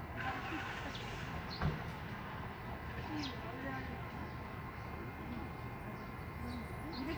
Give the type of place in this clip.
residential area